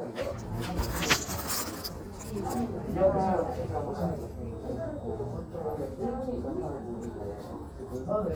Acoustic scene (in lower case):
crowded indoor space